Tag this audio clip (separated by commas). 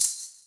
Rattle (instrument), Musical instrument, Music, Percussion